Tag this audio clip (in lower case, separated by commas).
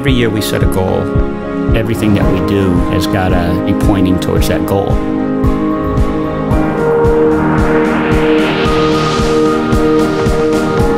speech, music